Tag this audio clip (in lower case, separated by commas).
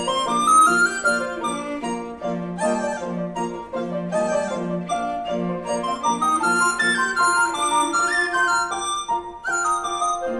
bowed string instrument, cello, double bass